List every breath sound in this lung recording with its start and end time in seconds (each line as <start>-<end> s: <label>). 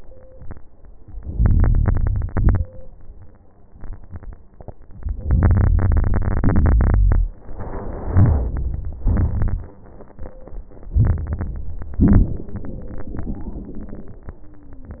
1.30-2.27 s: crackles
1.34-2.29 s: inhalation
2.28-2.73 s: exhalation
2.28-2.73 s: crackles
5.25-7.16 s: inhalation
5.25-7.16 s: crackles
7.68-9.58 s: exhalation
7.68-9.58 s: crackles
10.94-12.04 s: inhalation
12.05-14.37 s: exhalation
12.05-14.37 s: crackles